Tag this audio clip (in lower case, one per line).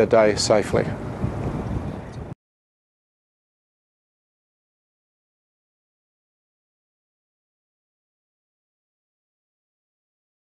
speech